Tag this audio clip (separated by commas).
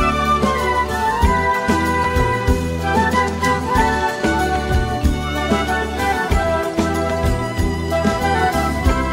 Music